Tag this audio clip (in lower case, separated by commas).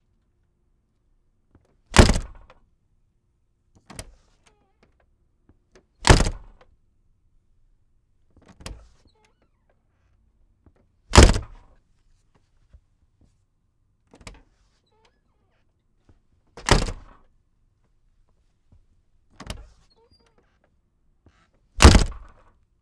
slam, domestic sounds, door